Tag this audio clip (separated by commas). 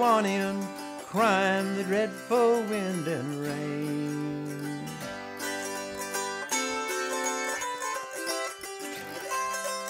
Music